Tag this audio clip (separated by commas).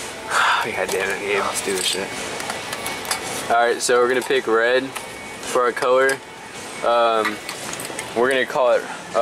Music, Speech, inside a public space